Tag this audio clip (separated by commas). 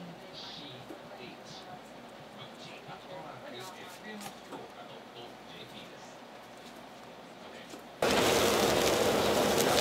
Speech